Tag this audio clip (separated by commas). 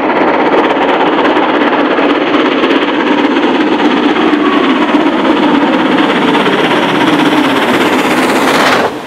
train wagon, Rail transport, Vehicle, Train